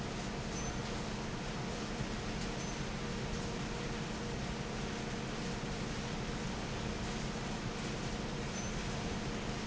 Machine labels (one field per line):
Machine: fan